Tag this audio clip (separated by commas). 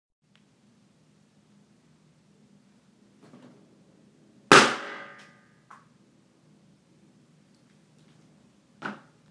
Explosion